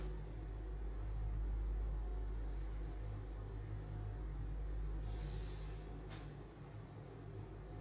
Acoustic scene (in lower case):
elevator